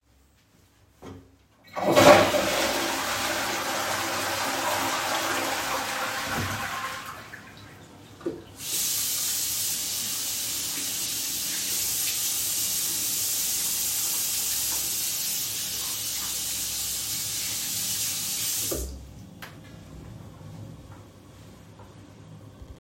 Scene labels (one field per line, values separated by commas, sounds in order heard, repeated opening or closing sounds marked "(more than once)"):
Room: bathroom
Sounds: toilet flushing, running water